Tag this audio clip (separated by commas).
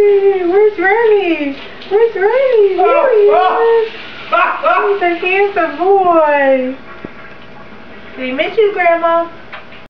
Speech